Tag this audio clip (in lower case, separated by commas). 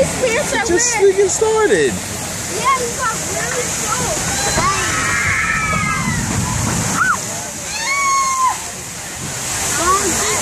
water, slosh, sloshing water, splash, speech